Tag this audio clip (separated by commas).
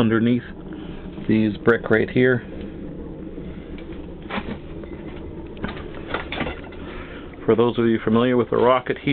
Wood